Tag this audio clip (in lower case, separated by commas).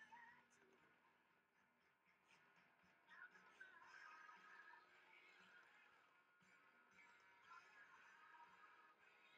music